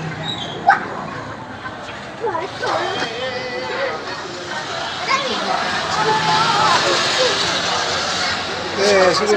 Voices in the background and then a vehicle speeds by